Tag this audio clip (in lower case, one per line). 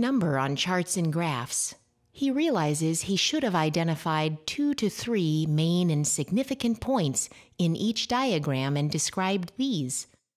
speech